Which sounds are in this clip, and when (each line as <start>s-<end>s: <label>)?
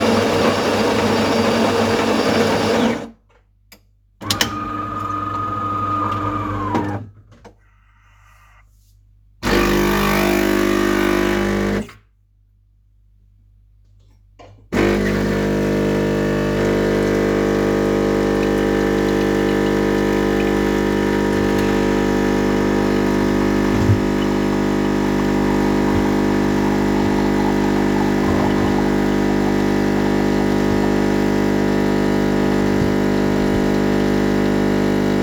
0.0s-3.3s: coffee machine
3.7s-7.6s: coffee machine
9.2s-12.1s: coffee machine
14.2s-35.2s: coffee machine